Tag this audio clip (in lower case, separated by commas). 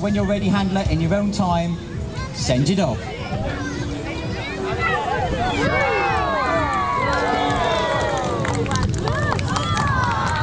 music, speech